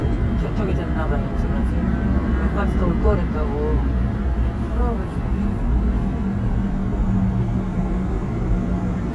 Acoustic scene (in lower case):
subway train